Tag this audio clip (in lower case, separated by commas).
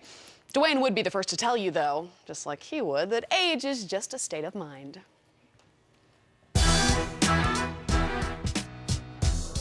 music, speech